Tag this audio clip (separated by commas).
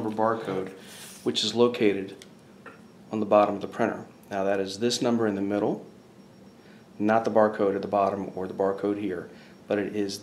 Speech